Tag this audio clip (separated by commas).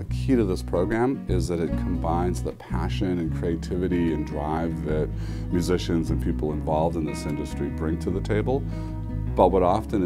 Music, Speech, Background music